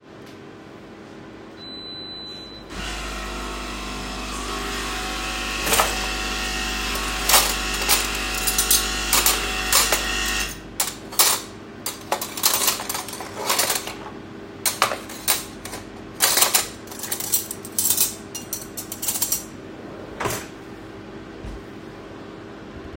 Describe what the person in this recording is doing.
I turned on my coffee machine before opening my kitchen drawer to sort some cutlery. I closed the drawer again after I got done.